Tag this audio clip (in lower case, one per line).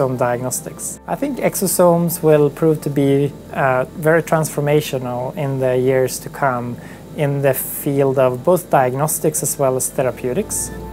speech
music